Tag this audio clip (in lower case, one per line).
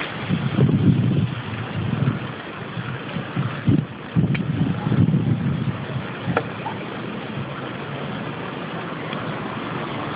speech